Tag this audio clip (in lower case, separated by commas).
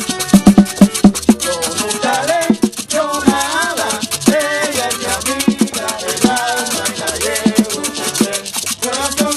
hip hop music, music